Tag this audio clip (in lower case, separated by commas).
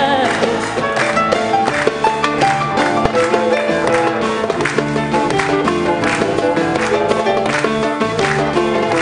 music, singing